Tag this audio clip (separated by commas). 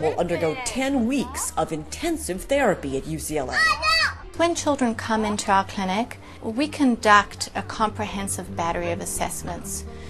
Music, Speech, kid speaking